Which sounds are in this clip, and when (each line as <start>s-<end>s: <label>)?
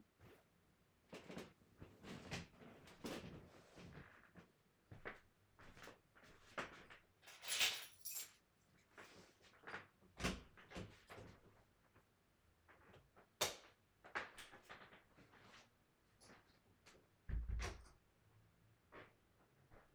4.8s-7.4s: footsteps
7.4s-8.6s: keys
8.7s-11.2s: footsteps
10.2s-11.1s: door
13.4s-13.6s: light switch
17.2s-18.2s: door